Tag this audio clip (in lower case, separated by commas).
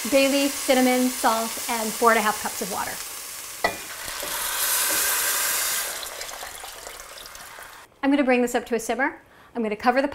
sizzle, frying (food)